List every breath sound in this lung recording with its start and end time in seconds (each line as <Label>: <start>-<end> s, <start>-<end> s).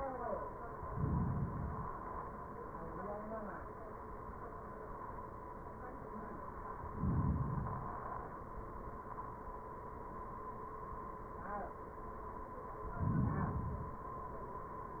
Inhalation: 0.64-2.14 s, 6.86-8.36 s, 12.74-14.13 s